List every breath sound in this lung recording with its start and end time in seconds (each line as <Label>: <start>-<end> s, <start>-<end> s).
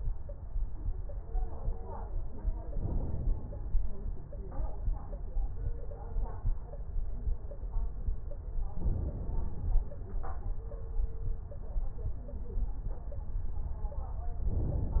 Inhalation: 2.70-3.77 s, 8.80-9.86 s, 14.48-15.00 s